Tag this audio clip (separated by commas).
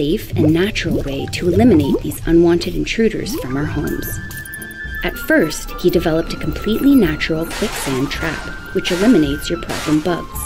Music, Speech